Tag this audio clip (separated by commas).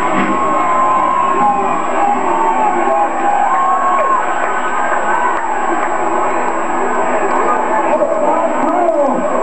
Speech